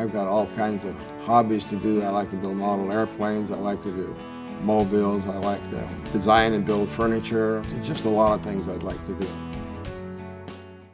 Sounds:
speech, music

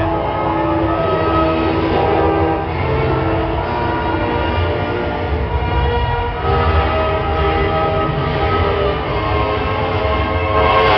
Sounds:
music

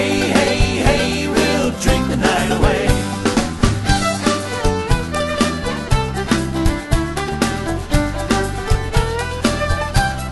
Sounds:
music

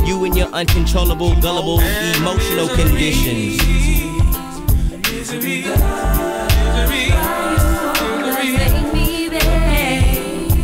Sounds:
reggae, hip hop music, music

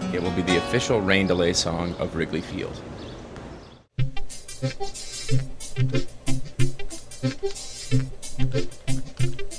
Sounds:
speech, music

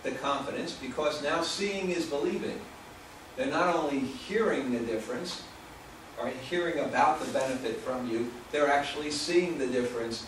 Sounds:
man speaking, speech, monologue

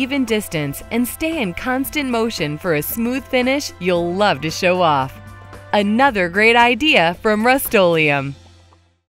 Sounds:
music, speech

